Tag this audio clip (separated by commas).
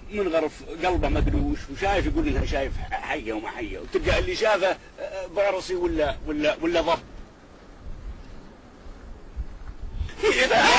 Speech